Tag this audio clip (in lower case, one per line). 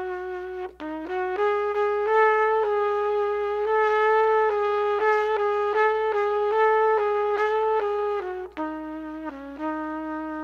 playing cornet